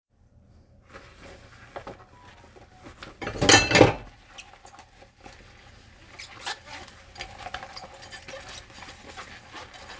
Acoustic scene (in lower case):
kitchen